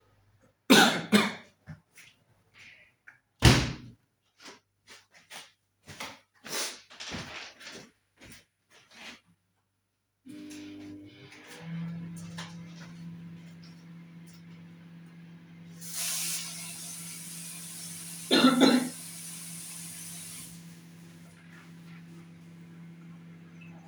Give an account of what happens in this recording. I coughed, closed the window, sniffled, went over to the microwave and turned it on to heat up some food. Then I turned on the tap, coughed, washed my hands, and turned it back off.